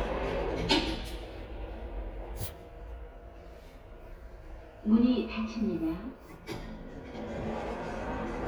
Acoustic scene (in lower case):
elevator